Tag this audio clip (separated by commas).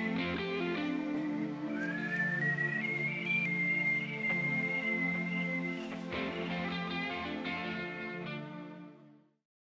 Music